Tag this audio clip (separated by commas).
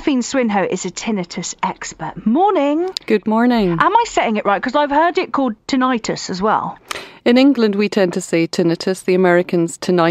Speech